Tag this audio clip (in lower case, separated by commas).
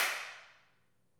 hands, clapping